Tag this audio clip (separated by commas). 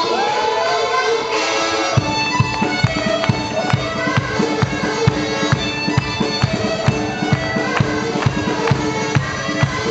Music, Harmonica